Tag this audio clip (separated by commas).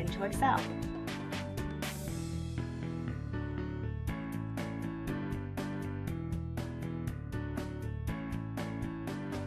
Music, Speech